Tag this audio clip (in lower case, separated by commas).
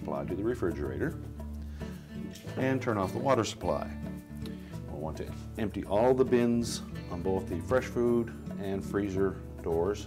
music, speech